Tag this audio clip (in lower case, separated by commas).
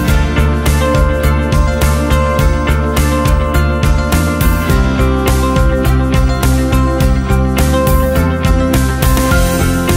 background music, music